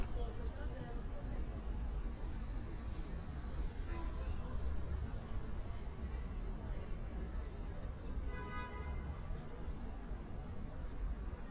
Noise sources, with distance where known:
car horn

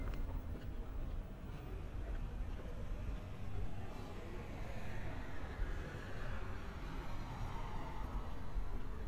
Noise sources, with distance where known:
background noise

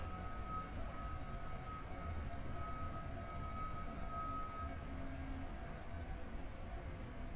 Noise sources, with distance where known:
unidentified alert signal, far

